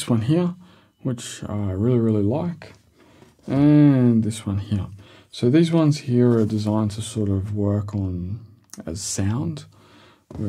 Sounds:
speech

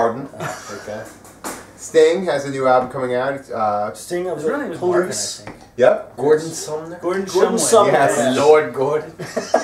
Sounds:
speech

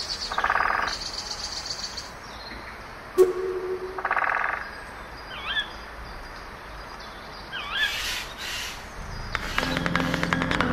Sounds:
music
animal
frog

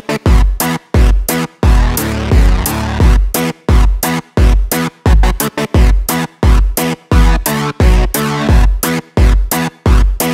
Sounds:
music

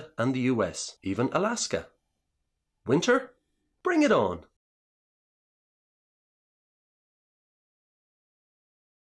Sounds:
speech

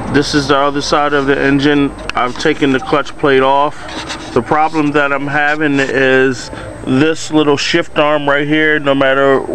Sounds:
speech

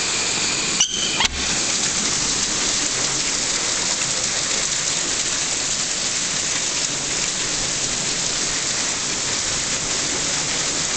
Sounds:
rain

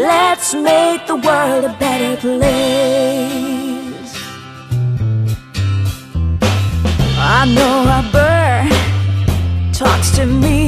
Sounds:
music

